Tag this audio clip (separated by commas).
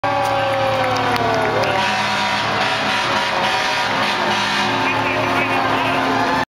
Emergency vehicle, Vehicle, Fire engine, Truck